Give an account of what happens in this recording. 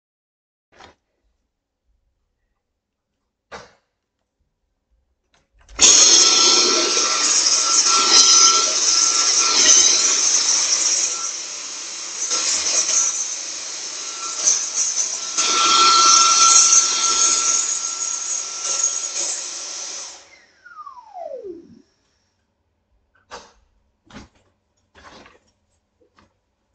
I turned on the vacuum cleaner, cleaned the floor of the living room and turned the vacuum clenaer off again.